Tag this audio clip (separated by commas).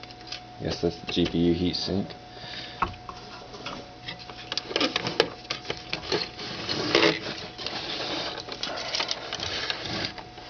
Speech